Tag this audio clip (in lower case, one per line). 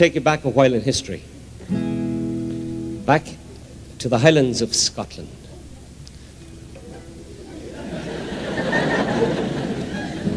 speech
music